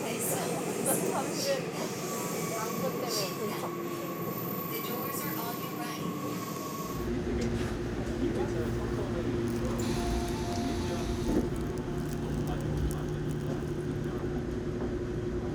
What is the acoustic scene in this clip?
subway train